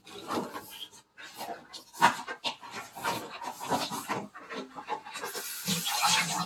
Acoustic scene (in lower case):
kitchen